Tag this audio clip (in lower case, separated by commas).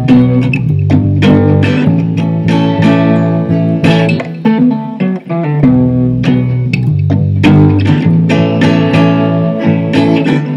bass guitar, music, plucked string instrument